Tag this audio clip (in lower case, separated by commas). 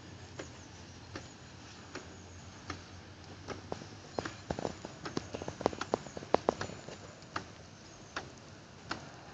tick-tock